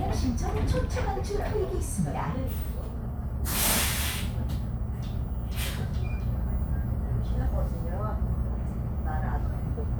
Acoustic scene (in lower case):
bus